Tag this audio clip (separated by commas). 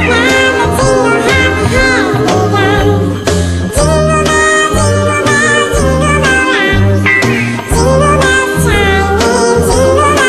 Music, Singing